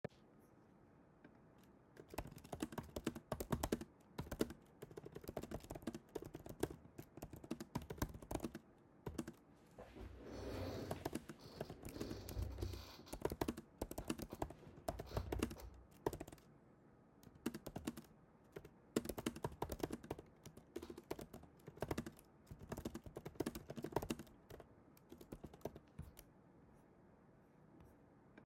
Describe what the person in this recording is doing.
I started typing on my MacBook and I also used that same exact MacBook for the recording of the audio, during the typing I moved around with the chair I sat on.